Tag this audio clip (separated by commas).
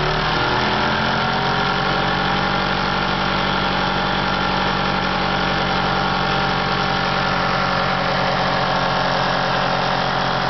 Heavy engine (low frequency)